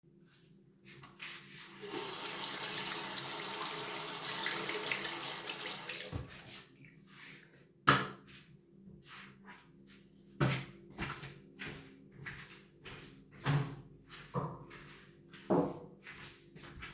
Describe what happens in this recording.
I wash my hands, then I turn of the light and walk out of the bathroom while hitting my knee to the side of the door